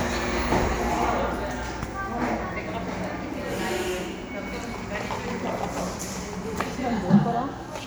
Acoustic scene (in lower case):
cafe